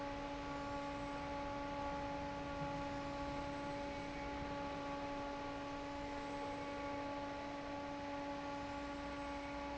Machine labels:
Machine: fan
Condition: normal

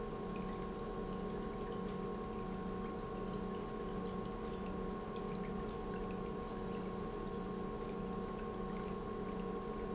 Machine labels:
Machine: pump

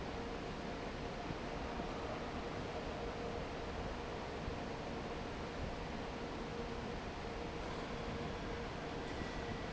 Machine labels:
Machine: fan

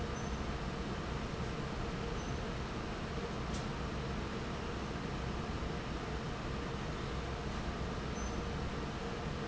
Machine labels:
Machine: fan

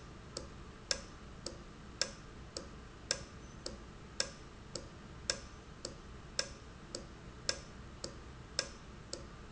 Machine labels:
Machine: valve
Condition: normal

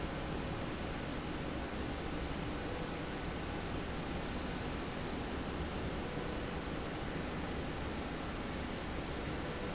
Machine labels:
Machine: slide rail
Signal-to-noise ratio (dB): -6 dB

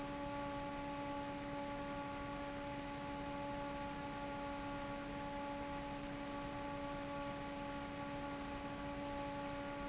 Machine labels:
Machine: fan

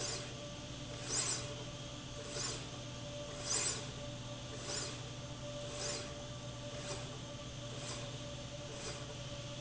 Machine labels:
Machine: slide rail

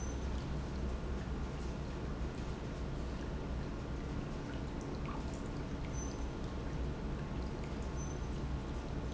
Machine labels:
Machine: pump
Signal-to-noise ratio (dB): -6 dB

